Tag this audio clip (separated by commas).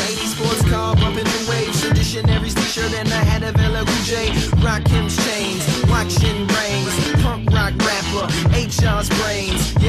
Music, New-age music, Funk, Dance music, Exciting music, Happy music